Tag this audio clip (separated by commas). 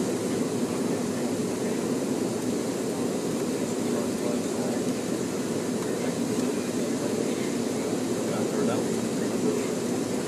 Speech, Vehicle